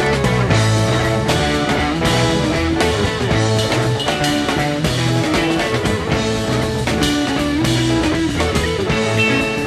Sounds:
music, rock music

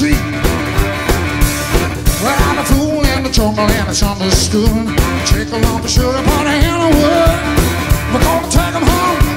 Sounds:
singing, music

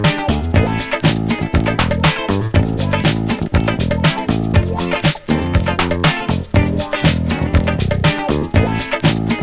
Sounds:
music

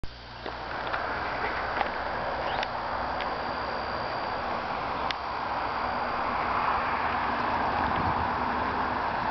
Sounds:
vehicle

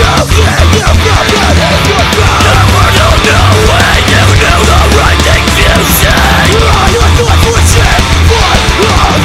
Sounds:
music, angry music

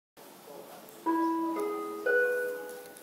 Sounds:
music

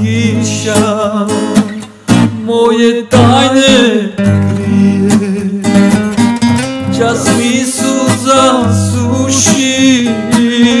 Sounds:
strum, guitar, music, acoustic guitar, plucked string instrument, musical instrument

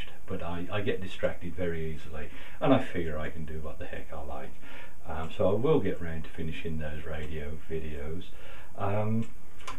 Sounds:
speech

